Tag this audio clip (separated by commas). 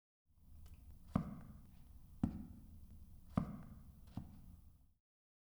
Walk